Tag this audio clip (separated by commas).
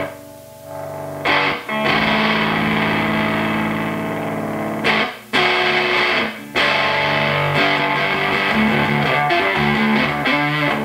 Music, Distortion, Plucked string instrument, Electric guitar, Musical instrument